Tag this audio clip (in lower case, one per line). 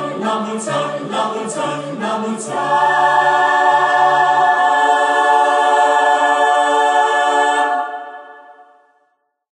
music